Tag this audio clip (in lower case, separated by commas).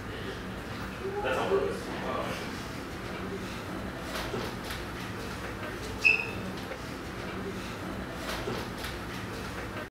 speech